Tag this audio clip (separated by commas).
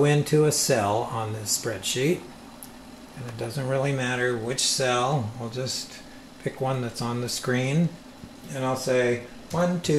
Speech